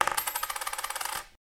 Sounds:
domestic sounds, coin (dropping)

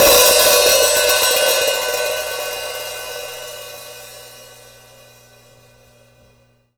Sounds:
percussion, music, musical instrument, hi-hat, cymbal

